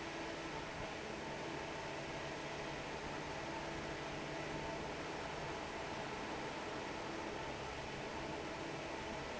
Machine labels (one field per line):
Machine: fan